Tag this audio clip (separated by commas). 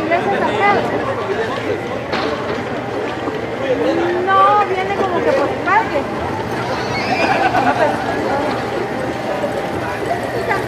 Chatter, Speech